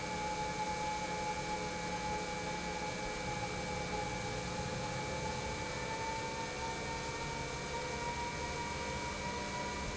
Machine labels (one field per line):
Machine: pump